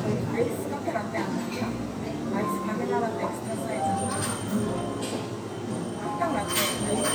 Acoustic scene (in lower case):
cafe